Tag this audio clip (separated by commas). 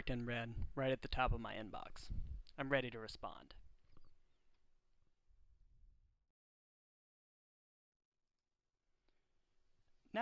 Narration